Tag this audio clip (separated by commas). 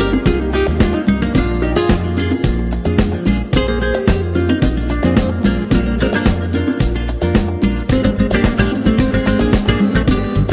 Music